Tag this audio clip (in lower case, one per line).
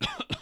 respiratory sounds
cough